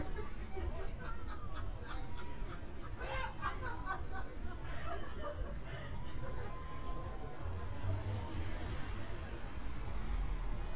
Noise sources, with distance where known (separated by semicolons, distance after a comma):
person or small group talking